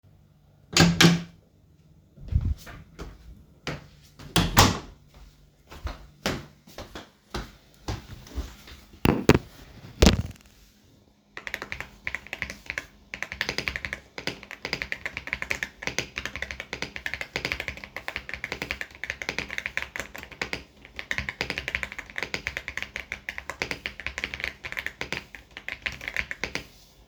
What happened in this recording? I opened the door, came inside, closed the door, walked to the desk and started typing on the keyboard.